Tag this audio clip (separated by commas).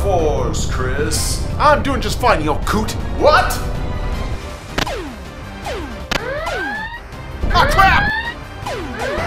Music, Speech